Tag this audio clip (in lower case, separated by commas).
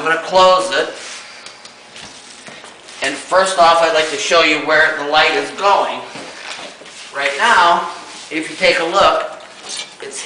speech